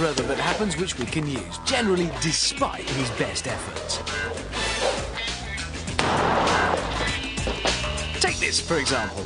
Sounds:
music
speech

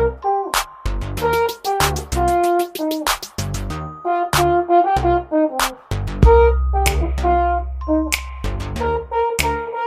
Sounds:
hip hop music
music
ringtone

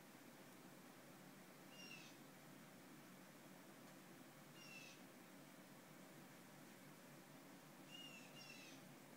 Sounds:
owl

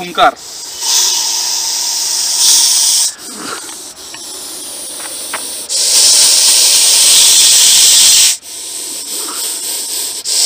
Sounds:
snake hissing

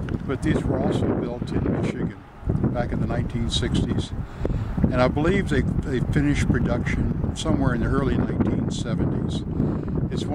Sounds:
speech

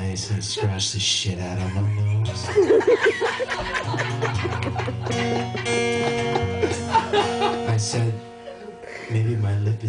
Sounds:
chortle
music
speech

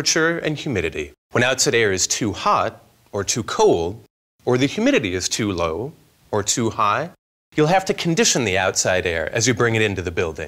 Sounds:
speech

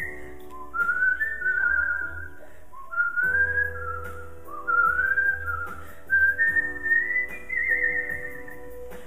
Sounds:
whistling
people whistling
music

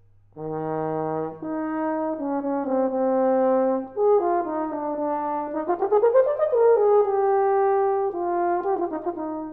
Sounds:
trombone
music
brass instrument

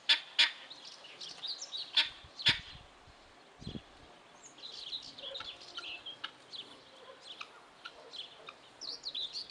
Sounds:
bird

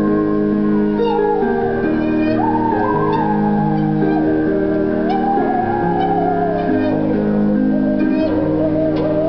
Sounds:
music

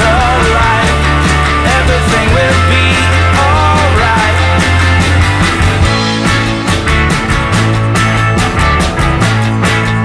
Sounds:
music

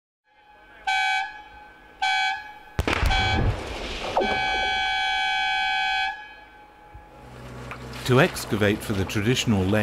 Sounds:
vehicle
air horn
speech

